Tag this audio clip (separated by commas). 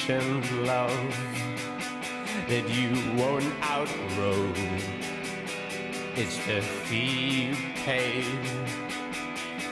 Pop music, Music